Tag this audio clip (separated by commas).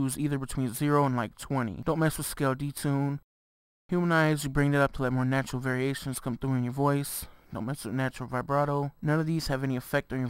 Speech